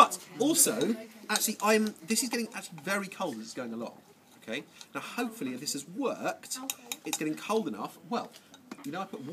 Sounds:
speech

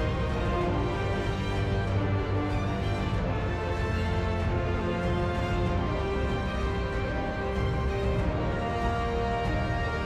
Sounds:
theme music, music

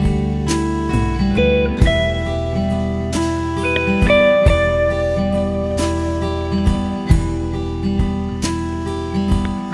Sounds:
steel guitar, music, electronic music, ambient music

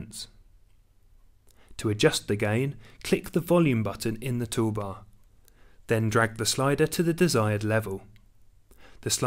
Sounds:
speech

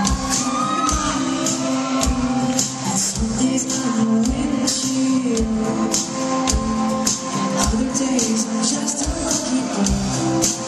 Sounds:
music

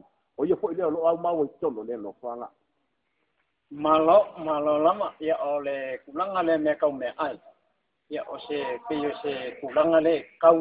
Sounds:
speech

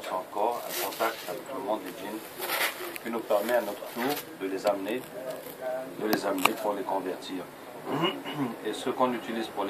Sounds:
speech

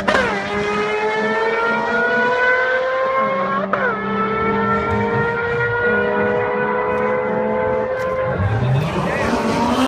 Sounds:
car, vehicle

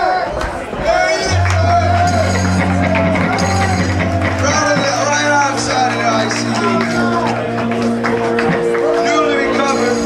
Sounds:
music, speech

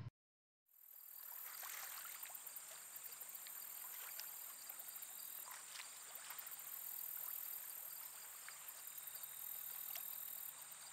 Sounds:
environmental noise

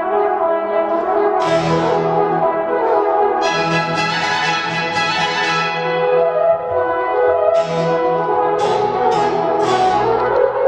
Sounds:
classical music, music, bowed string instrument, violin, musical instrument, orchestra

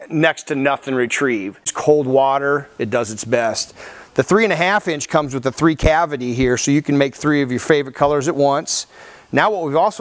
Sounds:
speech

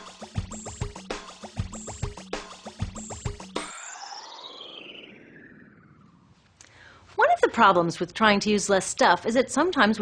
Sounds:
speech, music

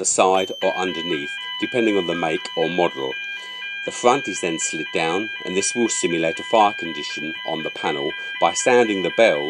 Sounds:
buzzer, speech

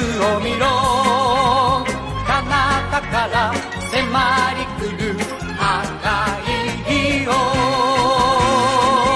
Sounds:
music

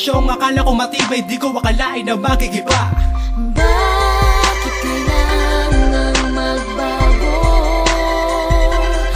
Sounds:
music, rhythm and blues

